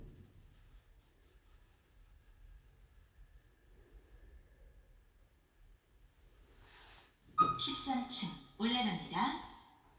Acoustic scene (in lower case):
elevator